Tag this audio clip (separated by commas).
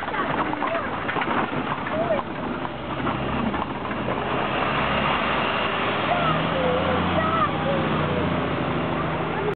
Clip-clop, Animal, Speech